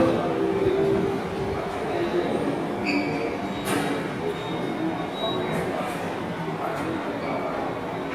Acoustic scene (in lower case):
subway station